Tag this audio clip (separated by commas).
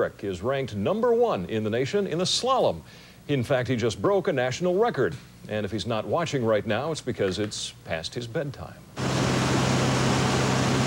Speech